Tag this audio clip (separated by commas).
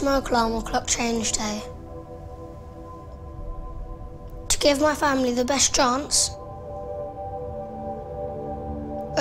Music, Child speech, Speech